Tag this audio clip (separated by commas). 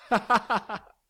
Human voice, Laughter